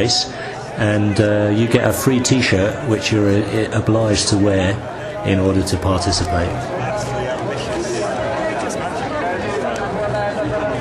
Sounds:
Speech

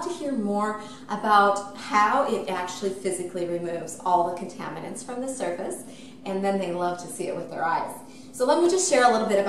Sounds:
Speech

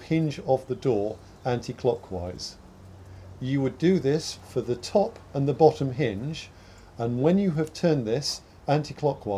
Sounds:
Speech

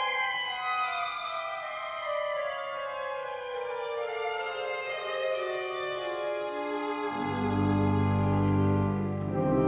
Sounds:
Music, Musical instrument, Violin

